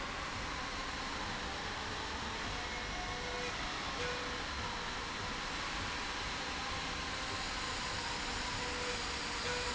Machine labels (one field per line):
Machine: slide rail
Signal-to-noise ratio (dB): -6 dB